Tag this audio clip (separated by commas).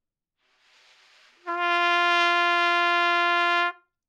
Trumpet, Music, Brass instrument, Musical instrument